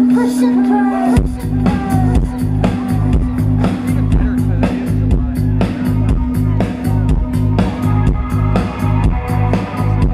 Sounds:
Music, Speech

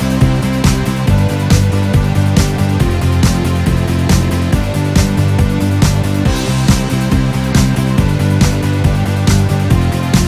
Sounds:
Music

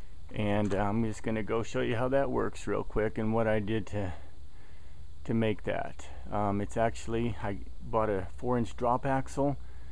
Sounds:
Speech

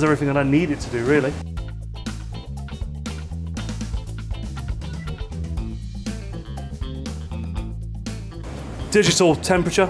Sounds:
Speech, Music

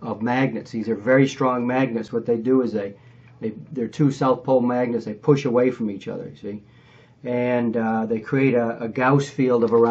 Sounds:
Speech

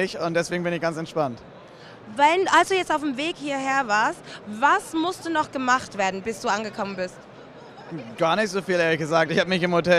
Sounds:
Speech

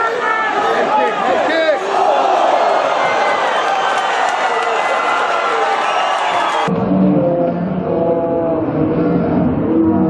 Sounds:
Speech

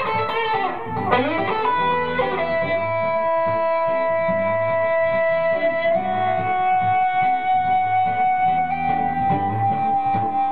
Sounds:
Music, Electric guitar, Plucked string instrument, Guitar, Musical instrument, Strum

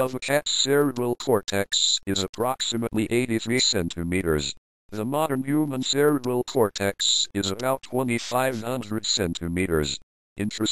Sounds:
Speech

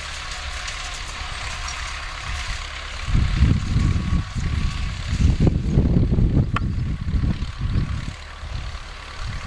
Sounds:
Idling, Vehicle

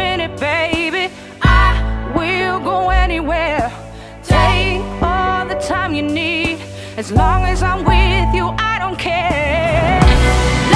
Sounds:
Music

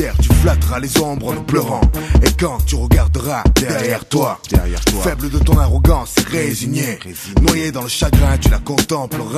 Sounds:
Rapping, Hip hop music, Music

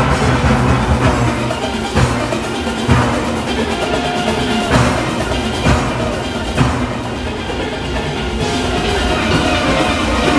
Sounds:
playing steelpan

